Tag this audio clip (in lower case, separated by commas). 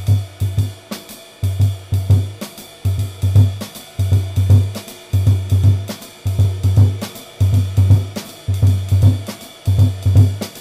playing bass drum